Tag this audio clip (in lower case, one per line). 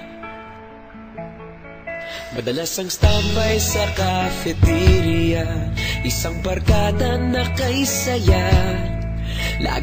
music